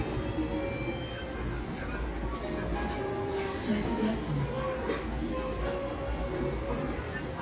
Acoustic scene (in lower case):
restaurant